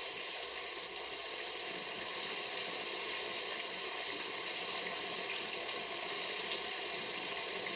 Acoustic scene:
restroom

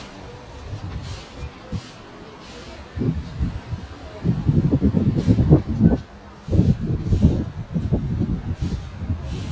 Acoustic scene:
residential area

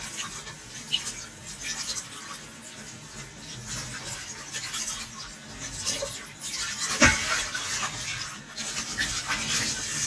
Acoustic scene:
kitchen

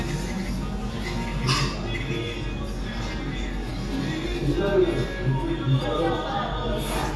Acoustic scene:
restaurant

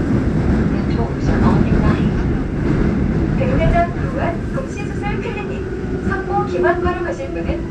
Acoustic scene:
subway train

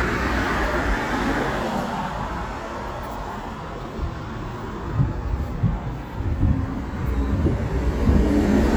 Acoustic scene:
street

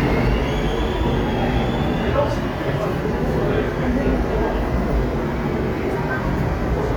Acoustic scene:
subway station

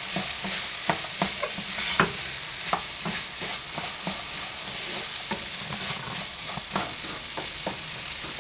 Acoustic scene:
kitchen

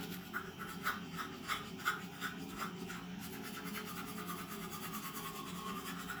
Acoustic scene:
restroom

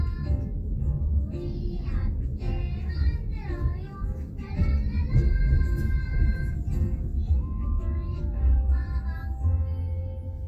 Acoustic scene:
car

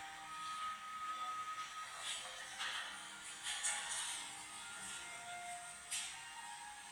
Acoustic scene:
cafe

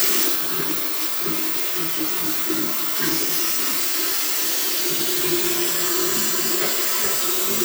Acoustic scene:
restroom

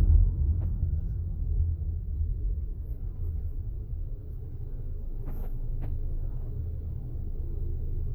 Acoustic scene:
car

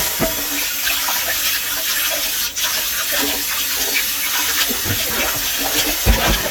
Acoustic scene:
kitchen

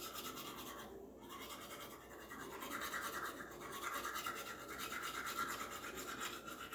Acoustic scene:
restroom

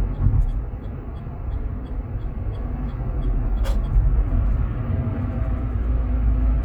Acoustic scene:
car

